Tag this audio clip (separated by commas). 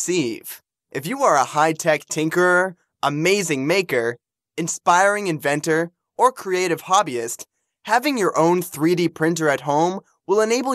Speech